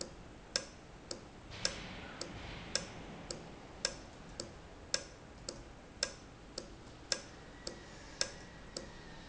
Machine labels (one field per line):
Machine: valve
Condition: normal